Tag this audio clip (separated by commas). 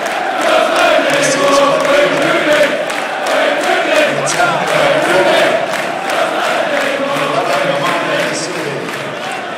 Speech